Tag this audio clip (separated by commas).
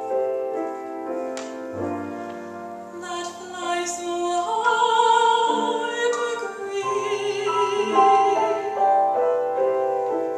Music